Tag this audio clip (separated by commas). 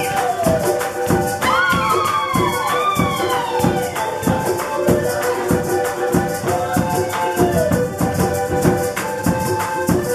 Music of Latin America, Music